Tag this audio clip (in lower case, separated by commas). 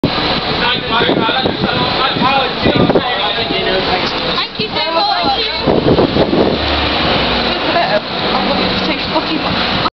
speech